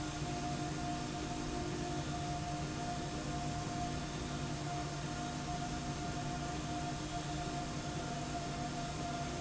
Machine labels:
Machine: slide rail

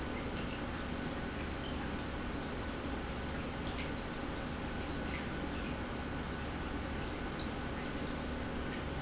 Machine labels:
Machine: pump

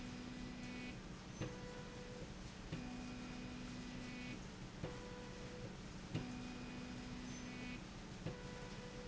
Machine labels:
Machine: slide rail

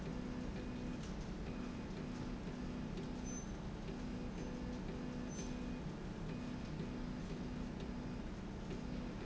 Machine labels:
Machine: slide rail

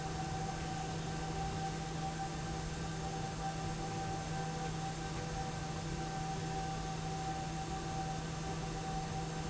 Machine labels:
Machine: slide rail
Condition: normal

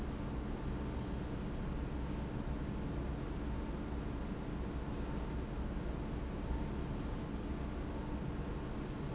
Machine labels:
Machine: pump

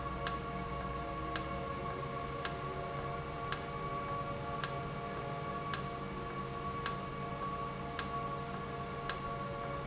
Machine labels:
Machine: valve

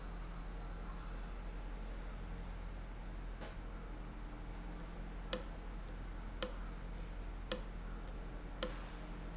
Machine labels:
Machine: valve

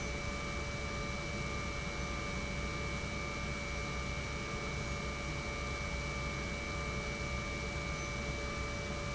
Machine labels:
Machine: pump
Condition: normal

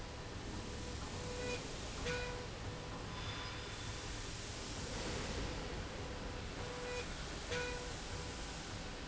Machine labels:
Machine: slide rail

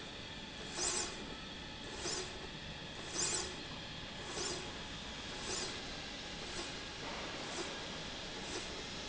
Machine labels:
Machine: slide rail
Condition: normal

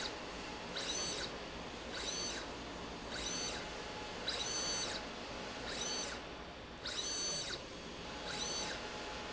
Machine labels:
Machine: slide rail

